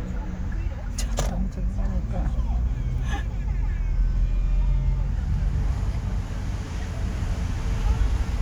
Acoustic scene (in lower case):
car